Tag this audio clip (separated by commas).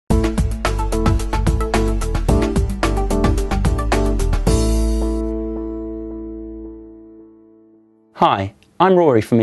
Speech, Music